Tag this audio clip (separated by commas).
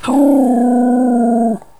Animal, Domestic animals, Dog